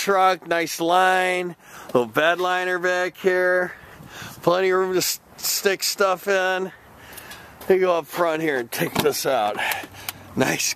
A man gives a short speech as he slides open a door